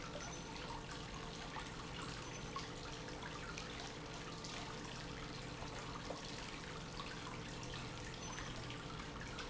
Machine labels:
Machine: pump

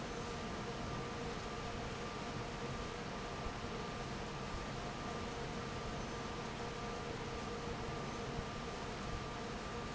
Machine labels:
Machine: fan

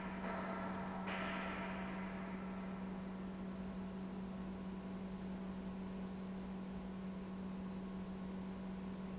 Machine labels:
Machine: pump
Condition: normal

